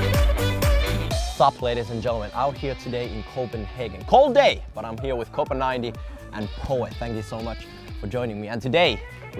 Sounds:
Music, Speech

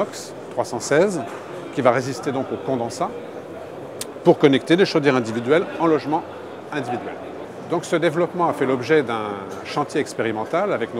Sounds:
Speech

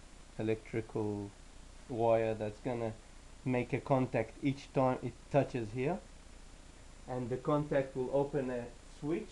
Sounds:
Speech

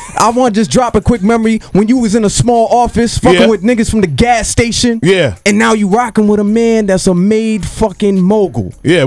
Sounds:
Speech

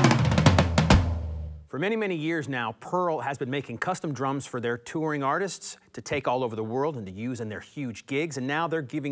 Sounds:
Speech, Music

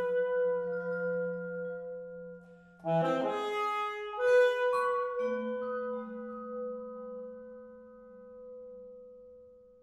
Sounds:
Brass instrument, Saxophone, Classical music, Marimba, Vibraphone, Musical instrument, Percussion, Music

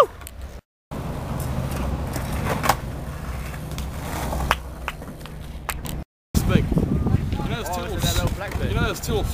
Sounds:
Speech

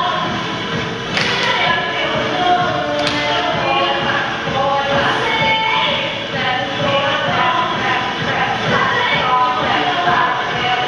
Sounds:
Walk, Music

